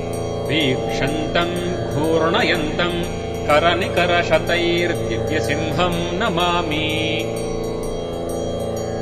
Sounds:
mantra

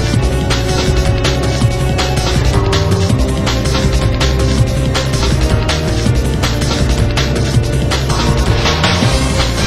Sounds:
music

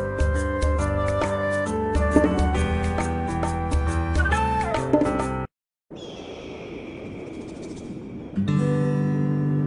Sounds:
music

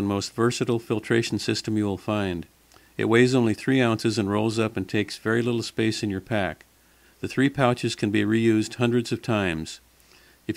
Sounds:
speech

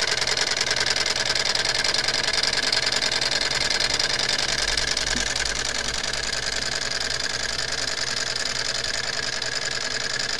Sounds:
idling, engine

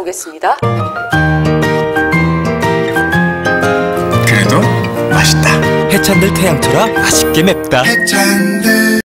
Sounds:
speech, music

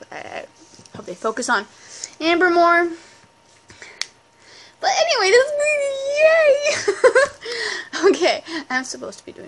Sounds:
speech, inside a small room

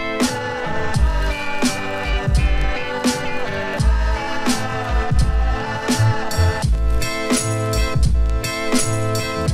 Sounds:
music

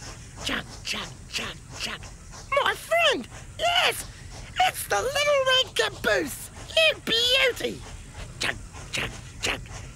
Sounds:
speech

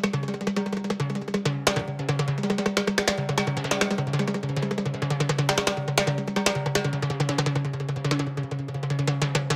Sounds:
playing timbales

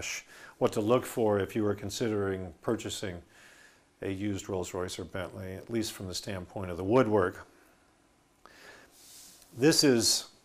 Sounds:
speech

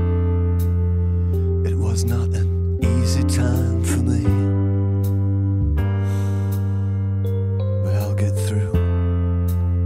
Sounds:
speech, music

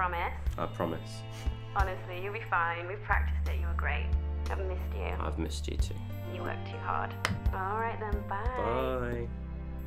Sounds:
music, speech

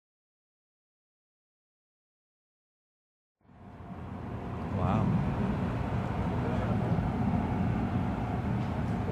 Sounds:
field recording, speech

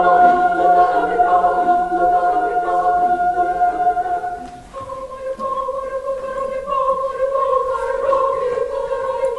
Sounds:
choir, music

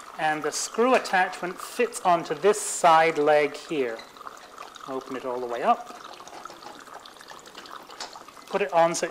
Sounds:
liquid, inside a small room, speech, water tap

